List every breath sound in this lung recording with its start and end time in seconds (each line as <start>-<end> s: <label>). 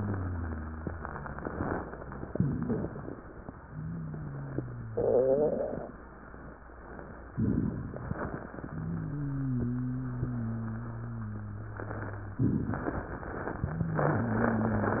0.00-1.78 s: wheeze
2.32-3.19 s: inhalation
2.32-3.19 s: crackles
3.63-5.85 s: exhalation
3.63-5.85 s: wheeze
7.34-8.16 s: inhalation
7.34-8.16 s: crackles
8.57-12.42 s: exhalation
8.57-12.42 s: wheeze
12.70-13.66 s: inhalation
13.65-15.00 s: exhalation
13.65-15.00 s: wheeze